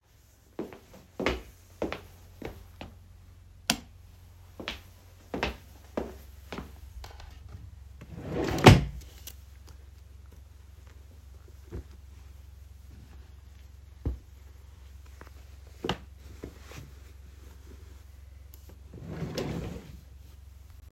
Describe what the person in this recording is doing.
I walked across the bedroom and turned on the lights, then I walked over the drawer. I pulled the drawer and searched for my clothes. After finding it, I took it out and shut the drawer.